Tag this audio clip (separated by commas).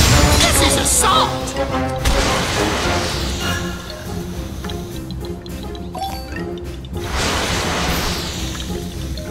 Music, outside, rural or natural, Speech